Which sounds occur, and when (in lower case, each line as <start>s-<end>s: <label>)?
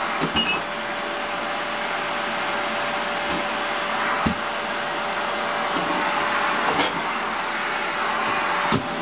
0.0s-9.0s: vacuum cleaner
0.1s-0.6s: generic impact sounds
3.3s-3.4s: generic impact sounds
4.2s-4.4s: generic impact sounds
5.7s-5.9s: generic impact sounds
6.7s-7.0s: generic impact sounds
8.6s-8.8s: generic impact sounds